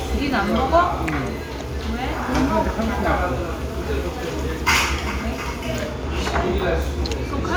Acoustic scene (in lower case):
restaurant